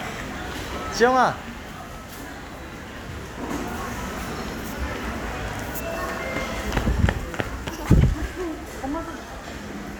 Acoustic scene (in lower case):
crowded indoor space